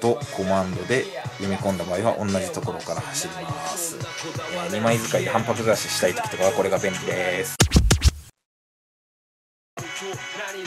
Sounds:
Music, Speech

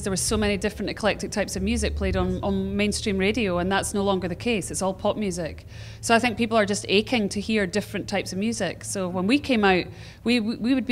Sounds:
Speech

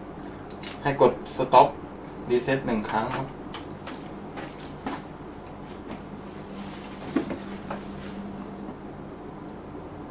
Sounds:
Speech

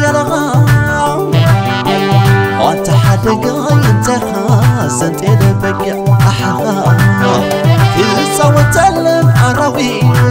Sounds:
Music, Middle Eastern music

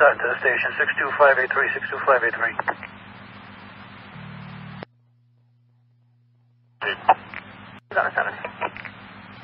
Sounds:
police radio chatter

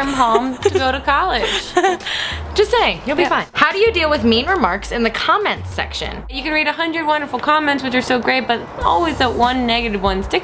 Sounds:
Speech, Music, inside a small room

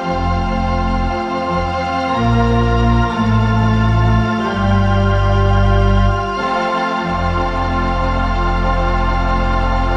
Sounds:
playing electronic organ

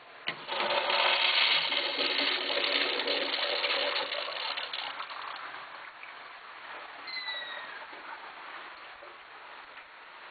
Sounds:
Toilet flush, toilet flushing

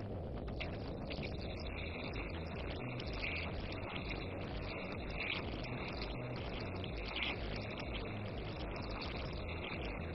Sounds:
Music

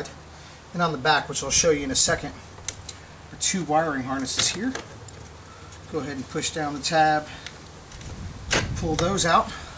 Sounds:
Speech

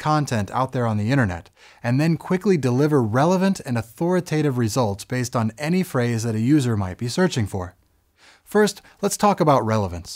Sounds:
Speech

